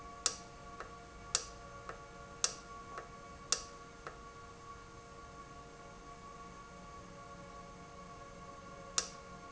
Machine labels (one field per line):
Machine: valve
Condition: normal